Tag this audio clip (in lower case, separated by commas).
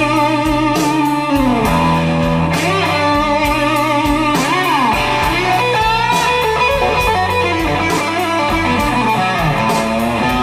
plucked string instrument, guitar, bass guitar, musical instrument, music, electric guitar